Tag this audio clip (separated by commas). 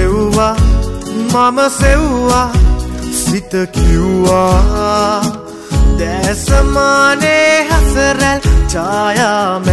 Music